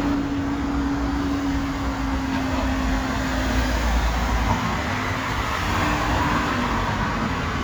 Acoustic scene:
street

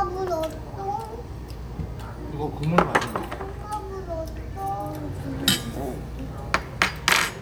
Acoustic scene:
restaurant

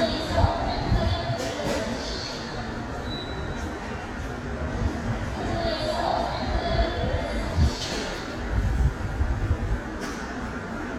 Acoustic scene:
subway station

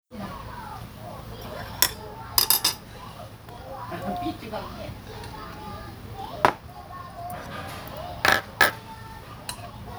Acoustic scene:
restaurant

